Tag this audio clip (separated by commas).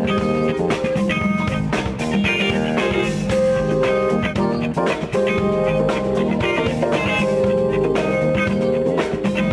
Music